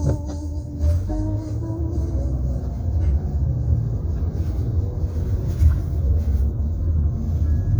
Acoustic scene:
car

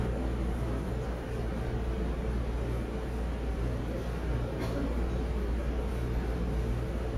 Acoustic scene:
subway station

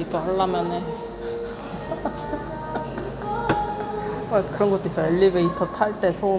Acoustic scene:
cafe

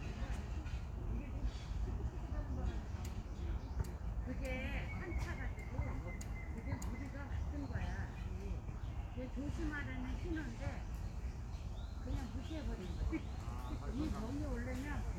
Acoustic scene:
park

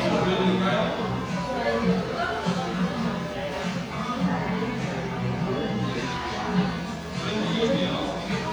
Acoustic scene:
cafe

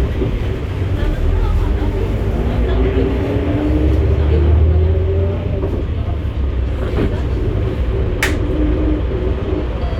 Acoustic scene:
bus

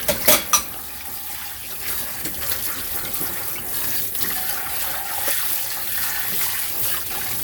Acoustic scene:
kitchen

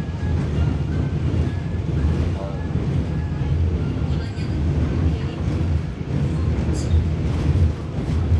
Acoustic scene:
subway train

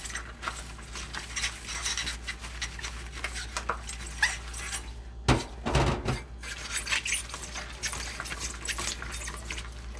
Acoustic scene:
kitchen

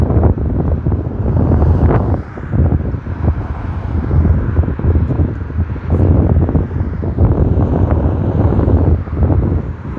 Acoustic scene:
street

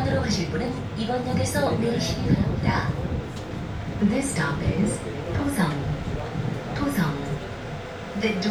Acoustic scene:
subway train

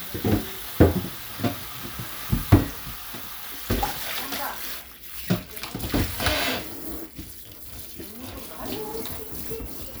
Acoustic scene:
kitchen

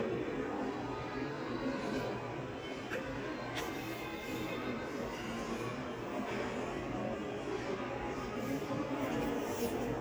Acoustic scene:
crowded indoor space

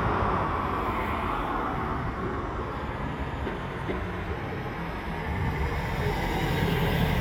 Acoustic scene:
street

